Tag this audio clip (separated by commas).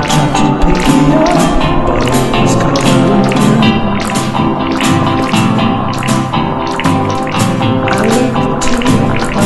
Music, Tender music